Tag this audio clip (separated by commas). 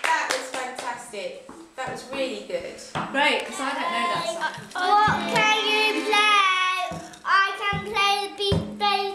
Speech, Child singing, Music